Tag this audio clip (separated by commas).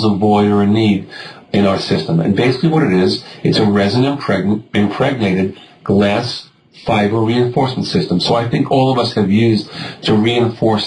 Speech